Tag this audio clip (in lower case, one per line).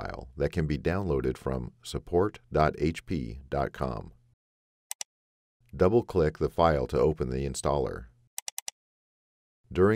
speech